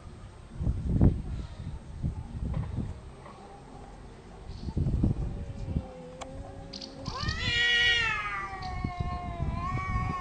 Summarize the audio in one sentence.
A cat meowing with wind noise in background